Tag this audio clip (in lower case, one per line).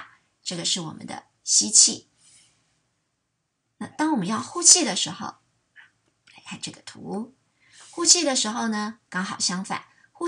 speech